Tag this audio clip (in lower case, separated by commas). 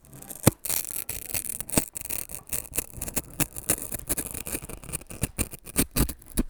tearing, crackle